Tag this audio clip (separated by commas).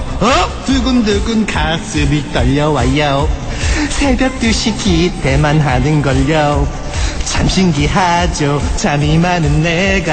Music